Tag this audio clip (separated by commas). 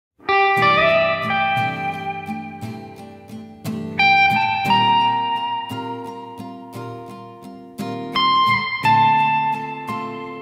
Music, Guitar, Plucked string instrument, Electric guitar, Musical instrument